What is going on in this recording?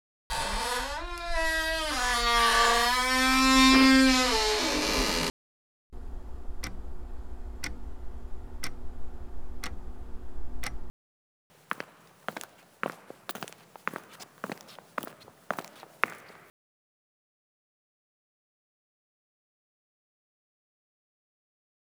Phone placed on hallway shelf. Subject arrived home, keys audible while approaching and unlocking, front door opened and closed.